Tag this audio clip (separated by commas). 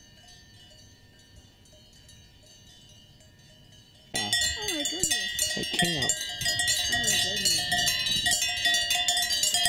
cattle